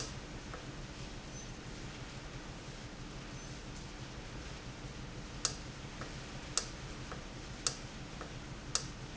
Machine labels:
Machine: valve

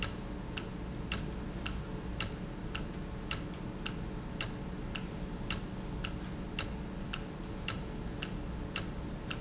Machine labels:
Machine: valve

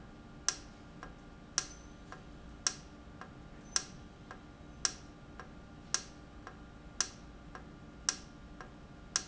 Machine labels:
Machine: valve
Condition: normal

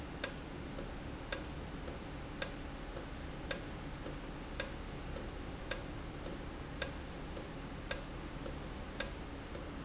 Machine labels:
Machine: valve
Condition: normal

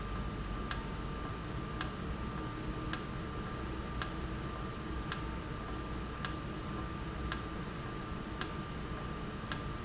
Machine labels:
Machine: valve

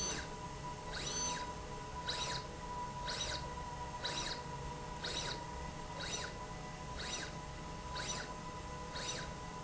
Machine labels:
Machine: slide rail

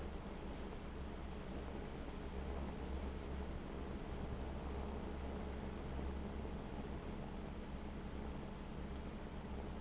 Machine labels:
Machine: fan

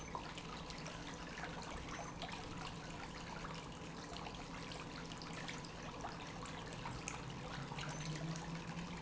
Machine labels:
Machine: pump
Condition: normal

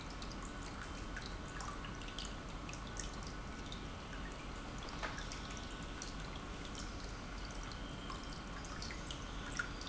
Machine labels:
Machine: pump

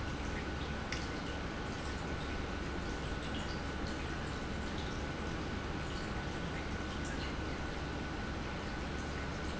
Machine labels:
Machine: pump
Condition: normal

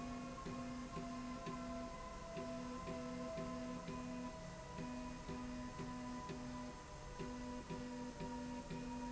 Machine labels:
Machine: slide rail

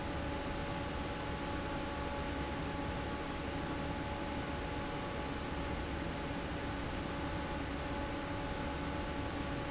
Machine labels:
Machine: fan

